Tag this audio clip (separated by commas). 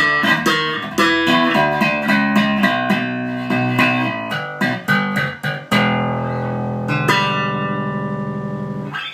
Tapping (guitar technique), Electric guitar, Bass guitar, Musical instrument, Plucked string instrument, Guitar, Music